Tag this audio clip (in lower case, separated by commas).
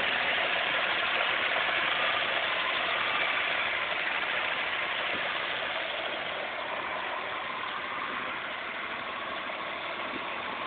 engine, vehicle